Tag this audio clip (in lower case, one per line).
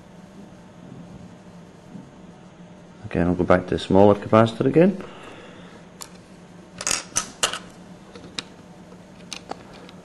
speech